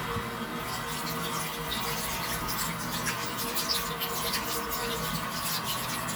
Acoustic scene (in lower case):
restroom